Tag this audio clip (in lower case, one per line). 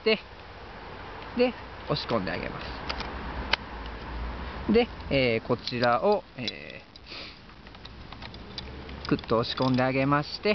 speech